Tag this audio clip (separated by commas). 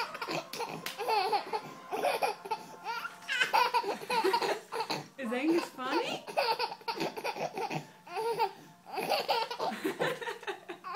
baby laughter